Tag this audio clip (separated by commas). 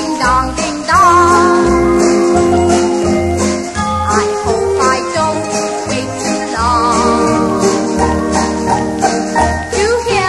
Jingle